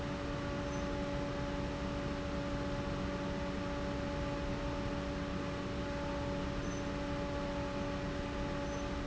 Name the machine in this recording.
fan